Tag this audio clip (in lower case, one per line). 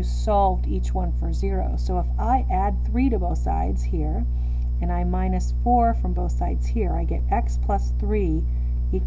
speech